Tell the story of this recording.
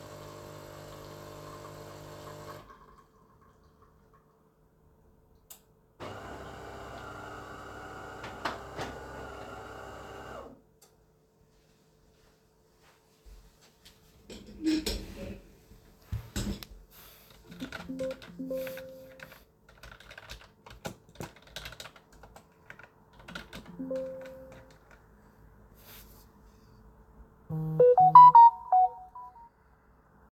I used the coffee machine and then sat down at my desk and used my keyboard. I get a notification and stop working.